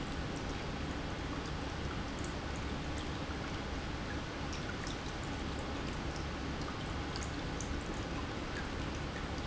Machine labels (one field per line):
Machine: pump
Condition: normal